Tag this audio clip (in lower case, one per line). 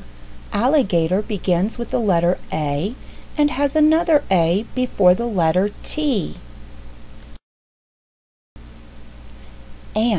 speech